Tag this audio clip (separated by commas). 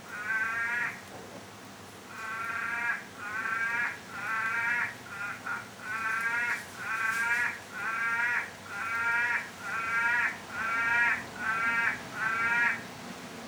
Frog, Animal, Water, Wild animals, Rain